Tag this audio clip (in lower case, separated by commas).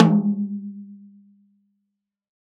music, drum, musical instrument, percussion, snare drum